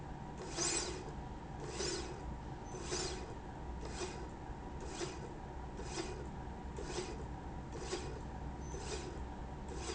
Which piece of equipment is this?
slide rail